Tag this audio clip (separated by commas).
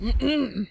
Cough, Human voice, Respiratory sounds